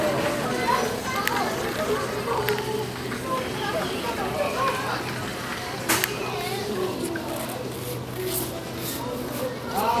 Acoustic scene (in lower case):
crowded indoor space